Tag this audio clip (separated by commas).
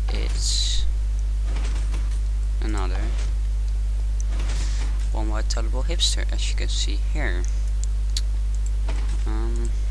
Speech